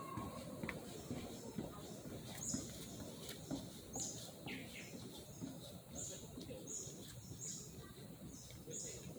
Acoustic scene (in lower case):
park